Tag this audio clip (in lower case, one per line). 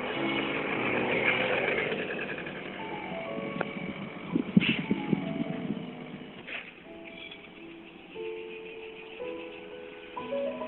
outside, rural or natural
music